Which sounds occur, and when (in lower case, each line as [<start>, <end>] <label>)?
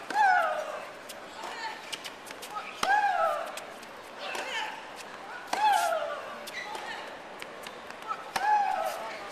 [0.00, 9.31] background noise
[0.12, 1.05] human voice
[1.20, 1.98] human voice
[2.42, 3.57] human voice
[4.10, 4.76] human voice
[5.49, 7.24] human voice
[8.23, 9.09] human voice